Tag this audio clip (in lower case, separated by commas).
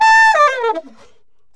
music, musical instrument, woodwind instrument